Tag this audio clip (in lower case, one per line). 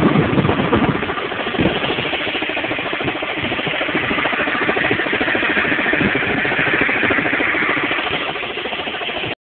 medium engine (mid frequency)
idling
engine
vehicle